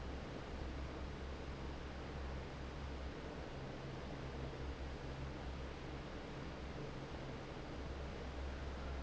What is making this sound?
fan